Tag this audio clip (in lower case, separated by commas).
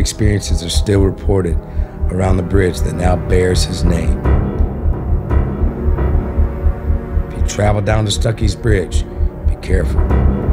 music, outside, rural or natural, speech